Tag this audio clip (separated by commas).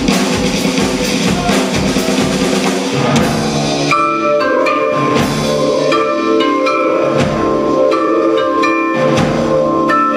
Drum kit, Musical instrument, Percussion, Drum, Vibraphone, Marimba, Music